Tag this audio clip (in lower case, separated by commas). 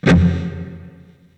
music, musical instrument, guitar, electric guitar, plucked string instrument